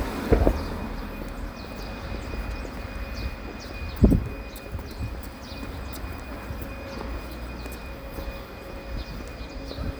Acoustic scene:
residential area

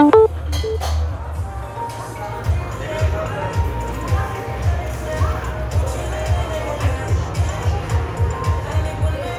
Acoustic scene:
cafe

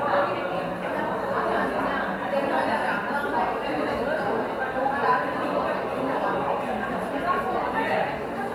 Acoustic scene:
cafe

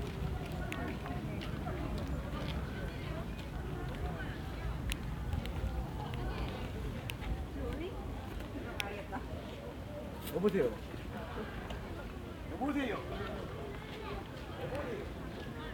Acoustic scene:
park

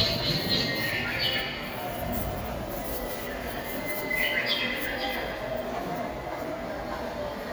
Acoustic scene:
subway station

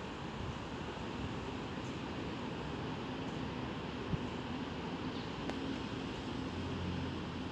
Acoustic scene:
residential area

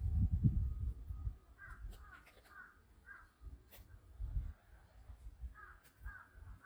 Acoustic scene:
park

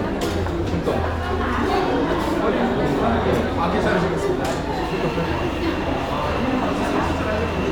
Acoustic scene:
cafe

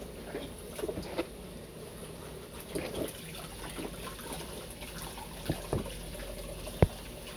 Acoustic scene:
kitchen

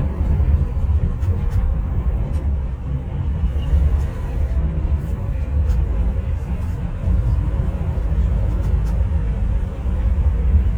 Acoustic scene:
bus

